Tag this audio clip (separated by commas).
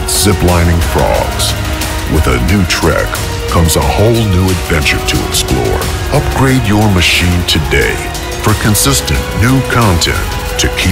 Speech, Music